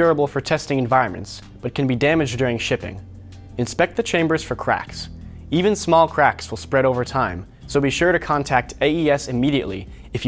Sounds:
speech

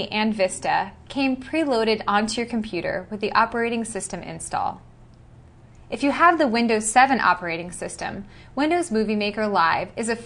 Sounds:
speech

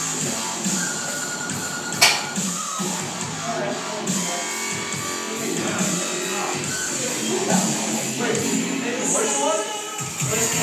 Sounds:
speech, music, dubstep

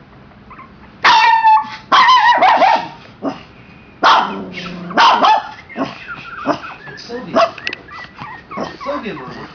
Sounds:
animal, speech, dog, pets, whimper (dog)

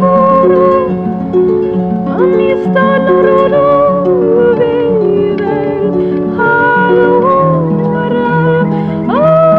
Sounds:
music, harp, song, musical instrument

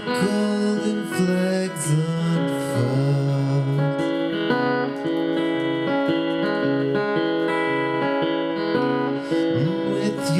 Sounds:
acoustic guitar, singing, musical instrument, music, guitar, plucked string instrument

